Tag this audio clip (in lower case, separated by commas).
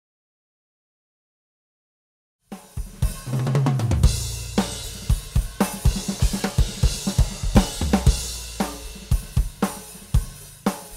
musical instrument, snare drum, music, hi-hat, cymbal